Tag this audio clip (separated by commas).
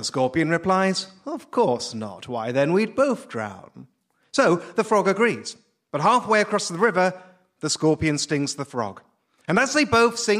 Speech